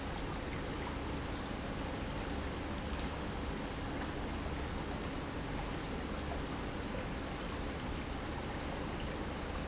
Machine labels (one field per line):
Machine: pump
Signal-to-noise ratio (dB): -6 dB